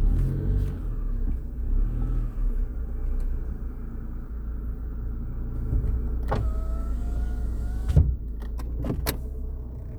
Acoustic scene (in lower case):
car